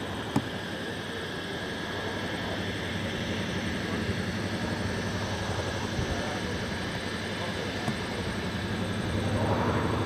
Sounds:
vehicle, speech

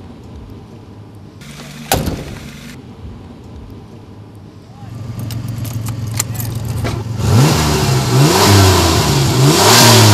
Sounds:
vroom, car, speech, vehicle, outside, urban or man-made, medium engine (mid frequency)

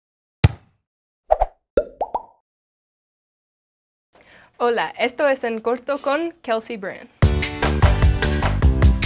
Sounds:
speech, music, female speech, plop

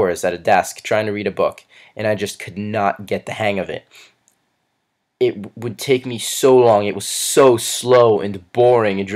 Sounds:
speech

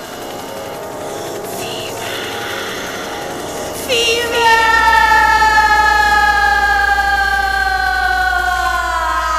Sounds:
music, speech

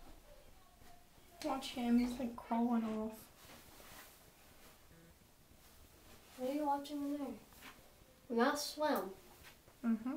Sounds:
speech

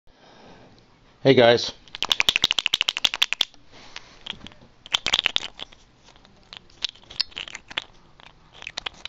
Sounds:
rattle, speech

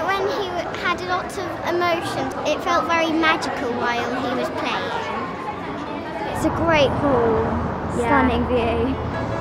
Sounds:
speech, music

